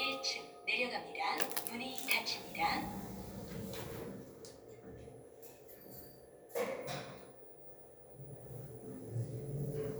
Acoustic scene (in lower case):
elevator